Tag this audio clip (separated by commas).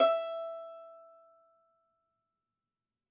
Musical instrument, Bowed string instrument, Music